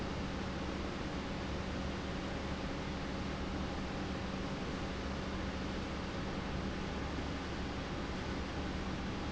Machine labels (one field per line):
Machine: pump